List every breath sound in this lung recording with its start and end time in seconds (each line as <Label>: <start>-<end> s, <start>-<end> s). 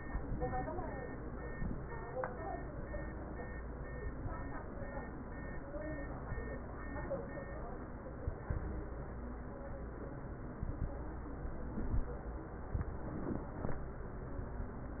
Inhalation: 1.49-1.79 s, 6.93-7.46 s, 8.21-8.87 s, 10.64-10.97 s, 11.81-12.14 s
Crackles: 8.21-8.87 s, 10.64-10.97 s, 11.81-12.14 s